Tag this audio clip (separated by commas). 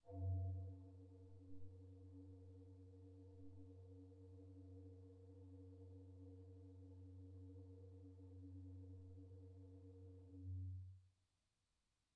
Musical instrument, Keyboard (musical), Organ, Music